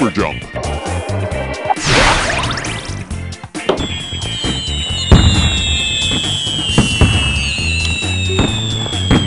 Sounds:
Music, Speech

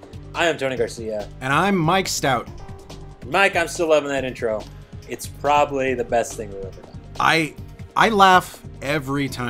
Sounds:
Music, Speech

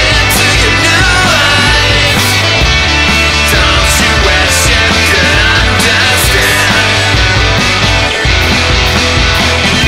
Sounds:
Singing, Music, Psychedelic rock

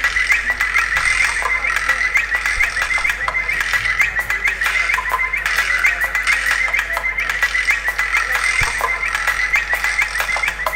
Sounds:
Music, Speech

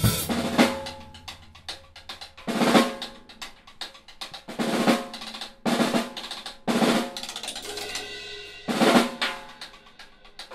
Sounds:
Drum, Musical instrument, Drum kit, Music, Bass drum

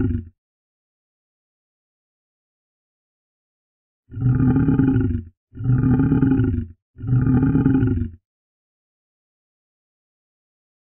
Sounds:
lions growling

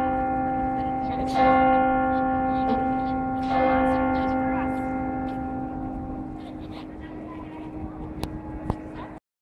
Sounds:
Speech, Tick-tock

